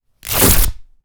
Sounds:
tearing

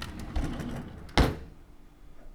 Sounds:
home sounds
drawer open or close

